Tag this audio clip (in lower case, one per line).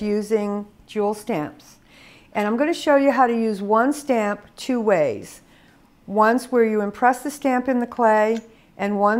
speech